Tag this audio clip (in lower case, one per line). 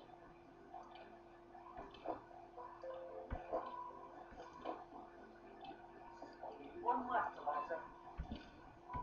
speech